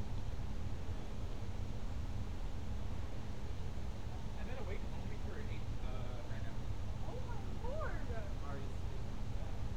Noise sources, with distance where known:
engine of unclear size
person or small group talking, far

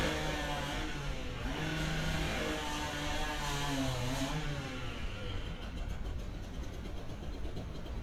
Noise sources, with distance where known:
chainsaw, near

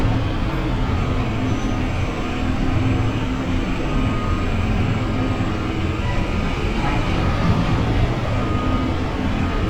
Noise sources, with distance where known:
large-sounding engine, near

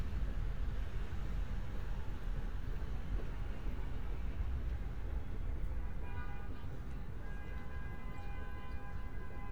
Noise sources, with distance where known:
car horn, far

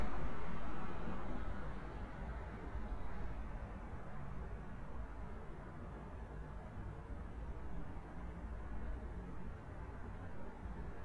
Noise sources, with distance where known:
background noise

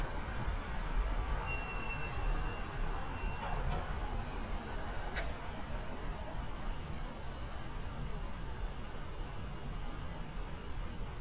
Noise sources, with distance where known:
engine of unclear size, far

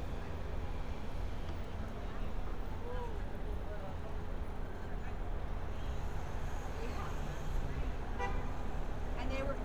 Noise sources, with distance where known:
person or small group talking, near

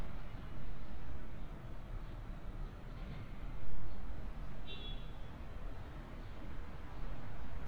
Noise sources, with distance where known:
car horn

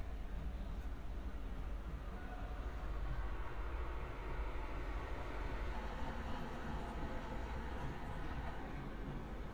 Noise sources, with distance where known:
person or small group shouting, far

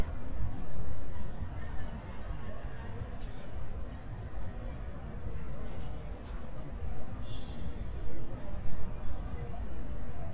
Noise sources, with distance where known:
car horn, far

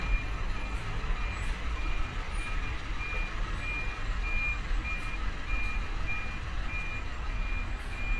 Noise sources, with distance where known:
large-sounding engine, near

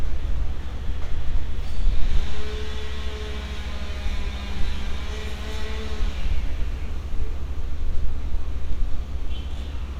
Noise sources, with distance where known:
unidentified powered saw, far

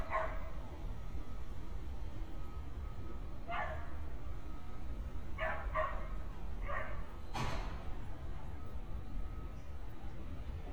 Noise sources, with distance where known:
dog barking or whining, near

